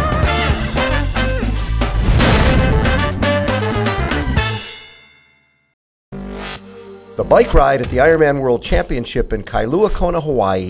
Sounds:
music, speech

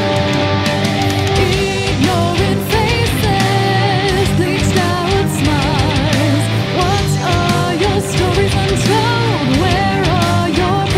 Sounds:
music

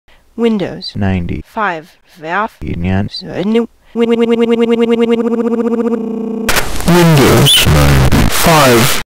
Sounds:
female speech, speech, monologue, male speech

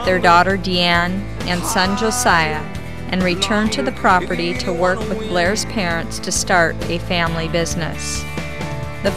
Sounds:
speech, music

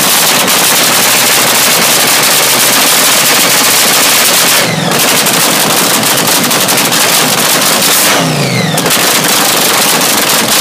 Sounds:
revving, car, engine, motor vehicle (road), vehicle

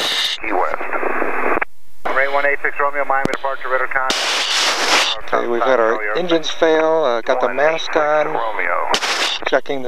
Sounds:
speech

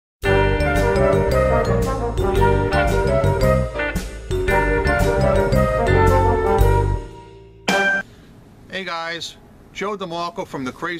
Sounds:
jingle

